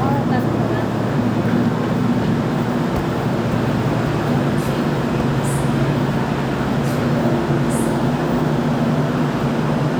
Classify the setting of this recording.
subway station